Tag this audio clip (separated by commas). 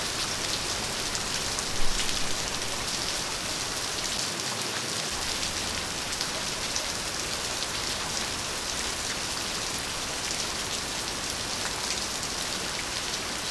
Rain, Water